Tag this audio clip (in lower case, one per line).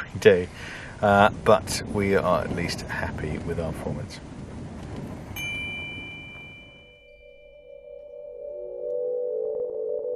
music
speech
inside a small room